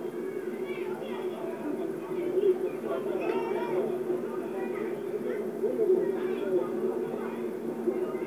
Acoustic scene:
park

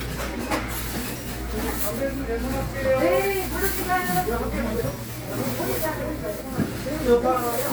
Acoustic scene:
crowded indoor space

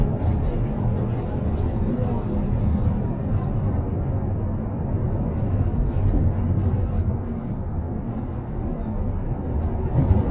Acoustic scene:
bus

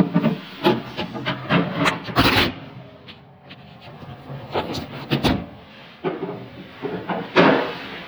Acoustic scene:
elevator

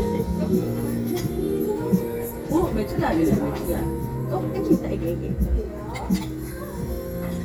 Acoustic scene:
crowded indoor space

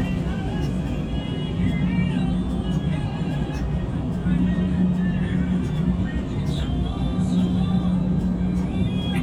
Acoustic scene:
bus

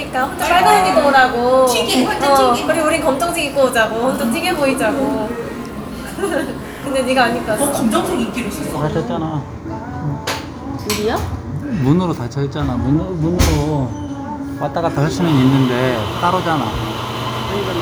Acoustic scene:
cafe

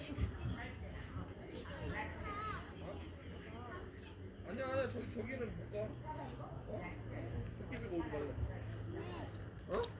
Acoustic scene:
park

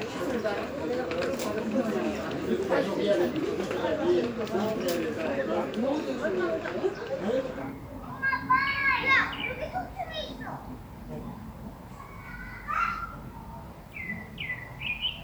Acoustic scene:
park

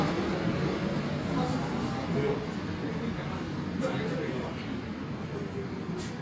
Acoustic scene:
subway station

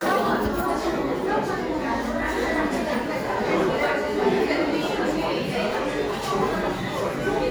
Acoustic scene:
cafe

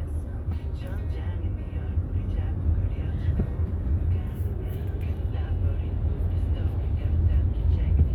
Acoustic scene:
car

